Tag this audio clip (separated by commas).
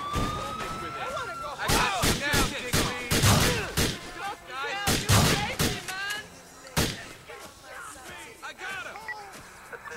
Speech